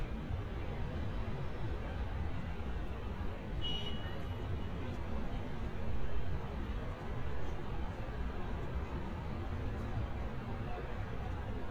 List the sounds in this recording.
car horn